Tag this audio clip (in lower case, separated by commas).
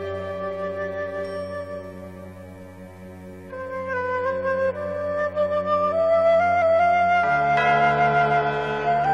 music, playing flute, flute